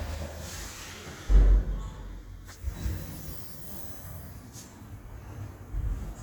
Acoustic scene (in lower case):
elevator